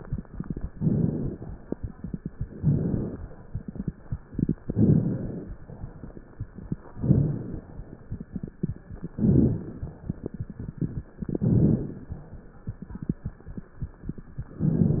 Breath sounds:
0.72-1.44 s: inhalation
0.72-1.44 s: crackles
2.54-3.27 s: inhalation
2.54-3.27 s: crackles
4.59-5.43 s: inhalation
4.59-5.43 s: crackles
6.85-7.69 s: inhalation
6.85-7.69 s: crackles
9.11-9.94 s: inhalation
9.11-9.94 s: crackles
11.25-12.09 s: inhalation
11.25-12.09 s: crackles

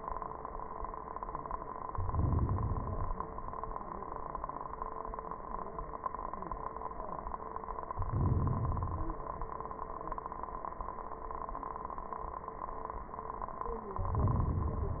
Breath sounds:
1.85-2.84 s: inhalation
2.83-3.75 s: exhalation
7.95-8.81 s: inhalation
8.82-9.62 s: exhalation
13.95-14.74 s: inhalation

